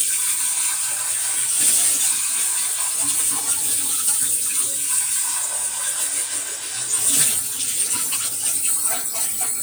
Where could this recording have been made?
in a kitchen